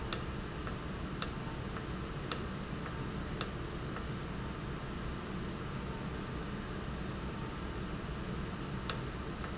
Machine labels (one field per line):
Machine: valve